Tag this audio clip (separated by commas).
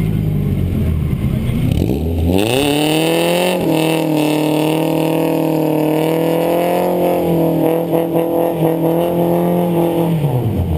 Speech